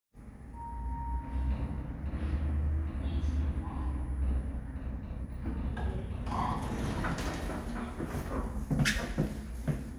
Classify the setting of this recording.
elevator